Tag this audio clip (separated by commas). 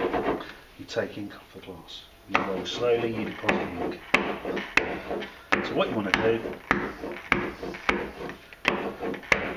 Rub